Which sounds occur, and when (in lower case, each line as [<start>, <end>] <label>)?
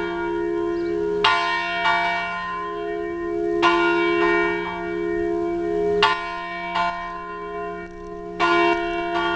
[0.00, 9.35] church bell
[0.00, 9.35] wind
[0.72, 0.90] bird song
[6.36, 6.44] generic impact sounds
[7.04, 7.14] generic impact sounds
[7.85, 8.23] generic impact sounds
[8.74, 9.02] generic impact sounds